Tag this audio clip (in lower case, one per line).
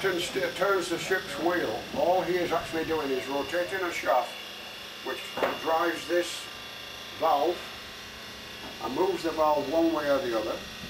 speech